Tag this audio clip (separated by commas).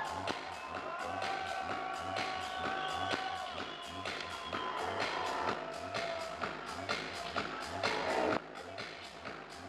Music